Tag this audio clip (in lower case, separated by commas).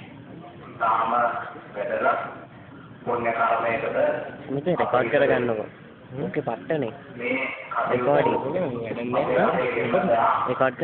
man speaking, speech, narration